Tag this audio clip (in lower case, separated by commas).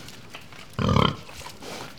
animal, livestock